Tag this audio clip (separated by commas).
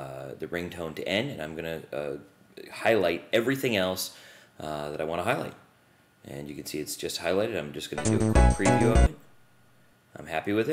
Music, Speech